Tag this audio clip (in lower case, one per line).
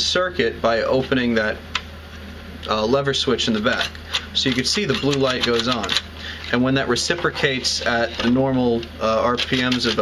inside a small room
speech